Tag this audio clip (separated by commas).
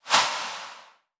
swoosh